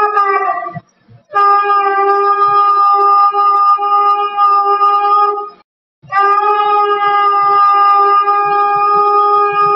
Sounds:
playing shofar

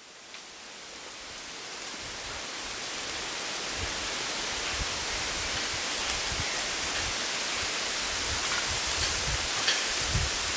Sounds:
wind rustling leaves

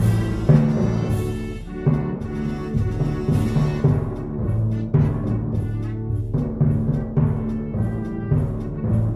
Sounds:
playing timpani

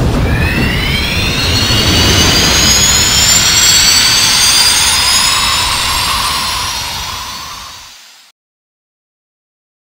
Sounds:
sound effect

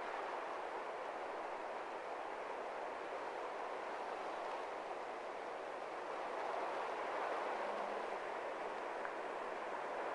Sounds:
outside, rural or natural, silence

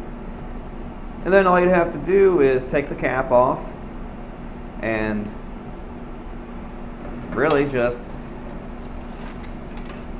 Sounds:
inside a small room, speech

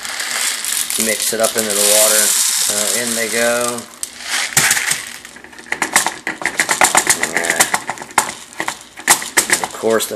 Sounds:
speech

